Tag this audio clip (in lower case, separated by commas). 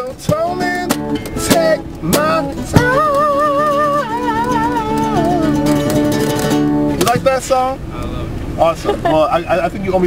musical instrument, plucked string instrument, guitar, strum, speech, music, acoustic guitar